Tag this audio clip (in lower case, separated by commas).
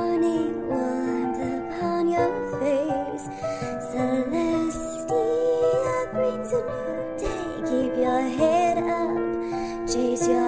lullaby, music